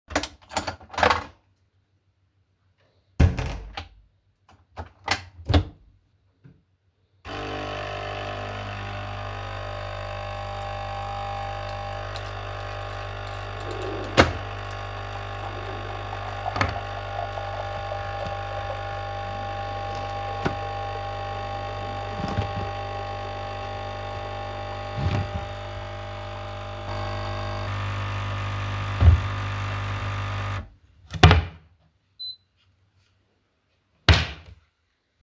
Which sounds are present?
coffee machine, door, wardrobe or drawer